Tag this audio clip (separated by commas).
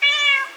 Animal, pets, Cat